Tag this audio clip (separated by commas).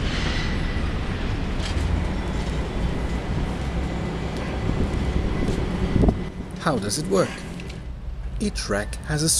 Speech